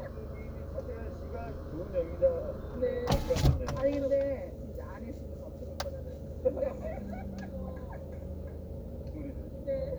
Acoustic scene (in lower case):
car